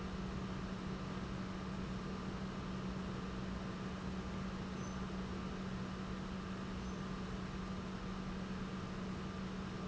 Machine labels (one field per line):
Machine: pump